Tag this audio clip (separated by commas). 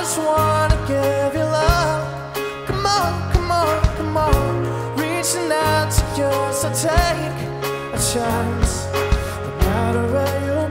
Music, Speech